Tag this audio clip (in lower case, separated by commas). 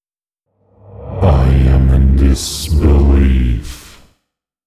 human voice, speech